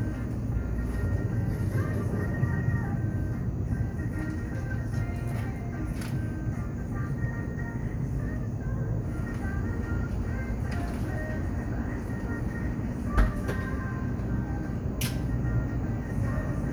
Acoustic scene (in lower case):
cafe